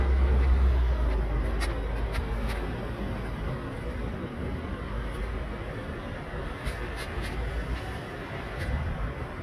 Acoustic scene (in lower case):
residential area